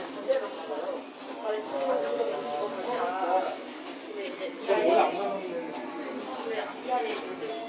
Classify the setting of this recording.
crowded indoor space